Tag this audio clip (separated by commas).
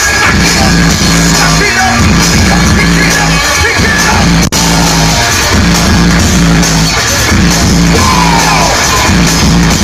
Music